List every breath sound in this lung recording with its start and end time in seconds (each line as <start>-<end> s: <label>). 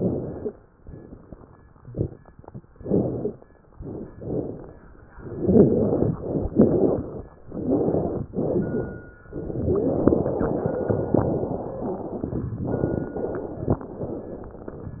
0.00-0.60 s: inhalation
0.28-0.60 s: stridor
0.80-1.86 s: exhalation
2.72-3.40 s: inhalation
3.74-4.12 s: exhalation
4.16-4.75 s: inhalation
5.14-5.93 s: exhalation
6.14-6.51 s: inhalation
6.53-7.31 s: exhalation
7.43-8.25 s: inhalation
8.31-9.13 s: exhalation
9.35-12.43 s: inhalation
12.59-13.18 s: exhalation
13.15-13.74 s: inhalation
13.84-15.00 s: exhalation